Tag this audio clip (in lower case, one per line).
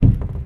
cupboard open or close
domestic sounds